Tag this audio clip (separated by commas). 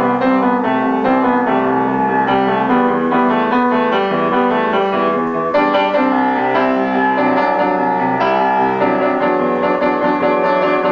Music